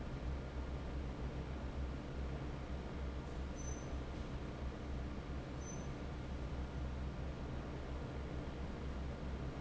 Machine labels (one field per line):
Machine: fan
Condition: normal